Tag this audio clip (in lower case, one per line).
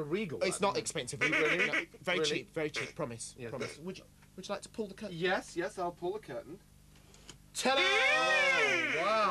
speech